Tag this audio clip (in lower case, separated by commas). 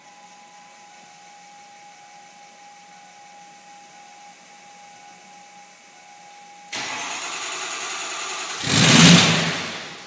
vehicle